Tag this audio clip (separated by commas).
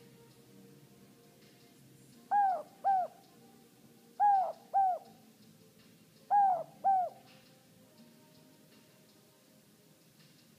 Animal, Bird, Coo